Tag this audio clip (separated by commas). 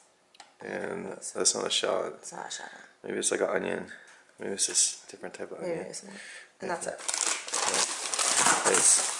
Speech, inside a small room